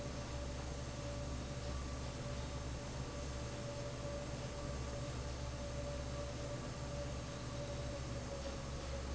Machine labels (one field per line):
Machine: fan